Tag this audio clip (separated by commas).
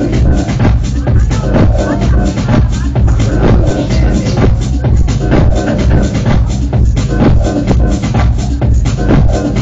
Music